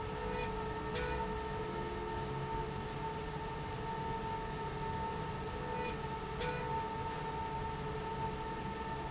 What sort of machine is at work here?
slide rail